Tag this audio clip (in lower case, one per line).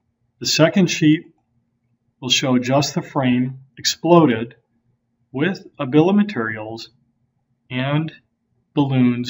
speech